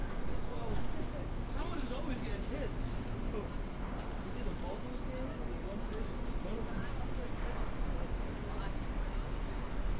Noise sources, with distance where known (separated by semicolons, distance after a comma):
person or small group talking, near